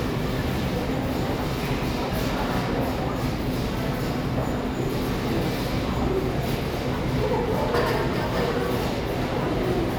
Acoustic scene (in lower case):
subway station